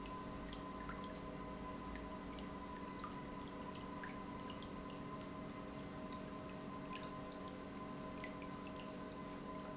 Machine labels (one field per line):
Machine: pump